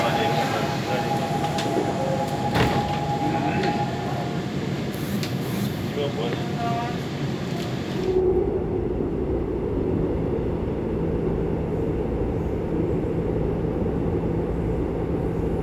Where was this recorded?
on a subway train